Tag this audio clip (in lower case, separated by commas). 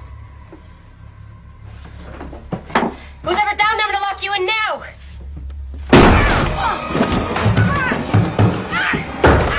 door slamming, music, slam, speech